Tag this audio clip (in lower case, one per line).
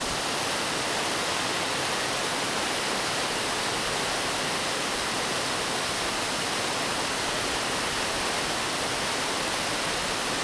water